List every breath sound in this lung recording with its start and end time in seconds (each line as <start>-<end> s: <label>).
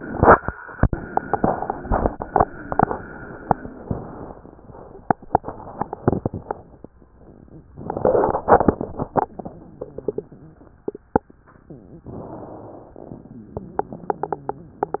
12.05-12.93 s: inhalation
12.93-15.00 s: exhalation
13.19-15.00 s: wheeze